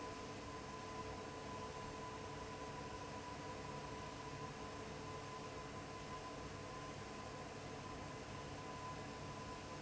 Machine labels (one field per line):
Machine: fan